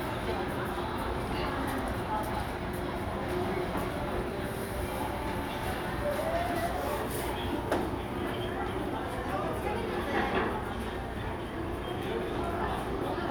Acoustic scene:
crowded indoor space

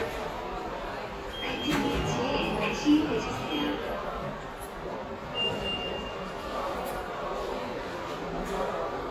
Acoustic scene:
subway station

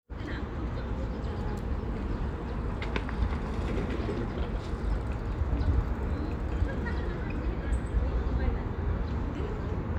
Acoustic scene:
park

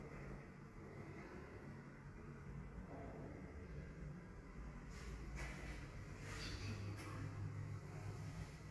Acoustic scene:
elevator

